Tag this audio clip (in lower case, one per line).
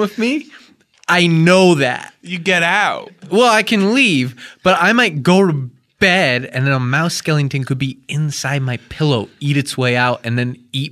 speech